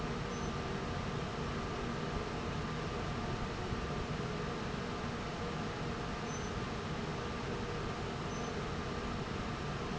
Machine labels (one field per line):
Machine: fan